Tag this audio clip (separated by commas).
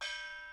Music, Gong, Musical instrument, Percussion